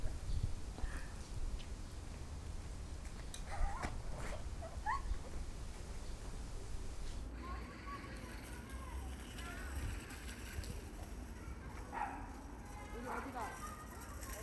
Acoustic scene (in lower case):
park